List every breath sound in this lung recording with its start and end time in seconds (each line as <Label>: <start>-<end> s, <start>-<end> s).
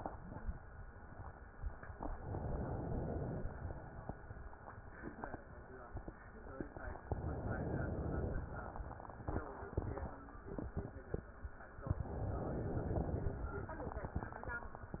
Inhalation: 2.03-3.42 s, 7.12-8.50 s, 12.01-13.40 s